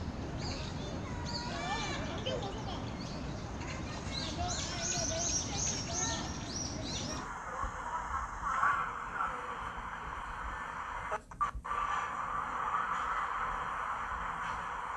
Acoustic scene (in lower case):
park